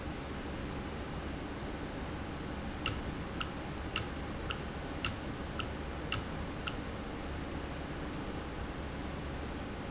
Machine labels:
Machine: valve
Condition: normal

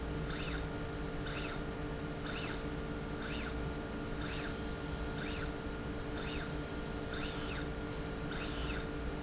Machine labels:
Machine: slide rail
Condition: normal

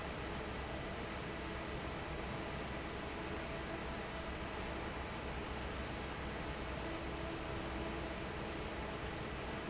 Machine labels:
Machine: fan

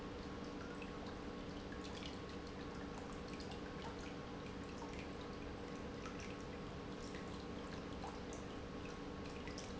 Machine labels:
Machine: pump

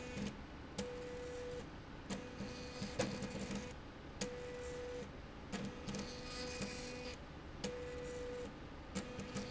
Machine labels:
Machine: slide rail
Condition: abnormal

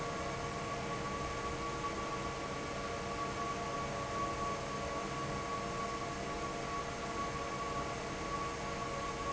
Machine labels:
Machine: fan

